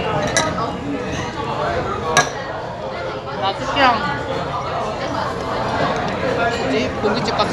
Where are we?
in a restaurant